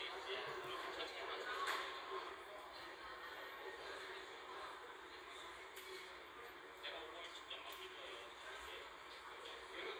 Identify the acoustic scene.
crowded indoor space